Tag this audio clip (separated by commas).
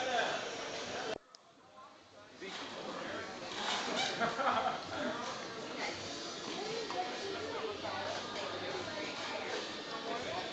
Music, Speech